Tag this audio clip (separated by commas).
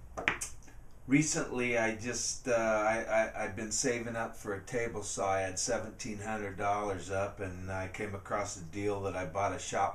Speech